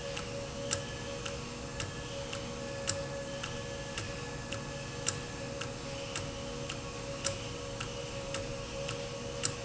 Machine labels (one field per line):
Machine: valve